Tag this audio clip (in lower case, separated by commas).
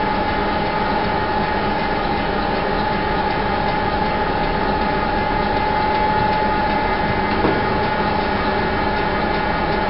engine, heavy engine (low frequency), idling